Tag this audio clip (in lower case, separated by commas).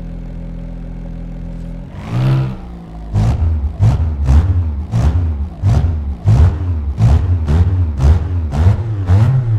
vehicle, car, revving